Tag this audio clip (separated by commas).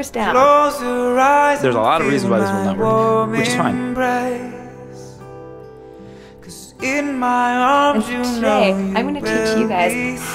Speech, Music